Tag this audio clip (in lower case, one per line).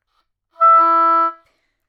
musical instrument
woodwind instrument
music